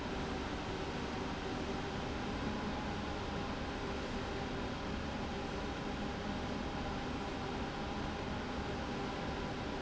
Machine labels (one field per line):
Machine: slide rail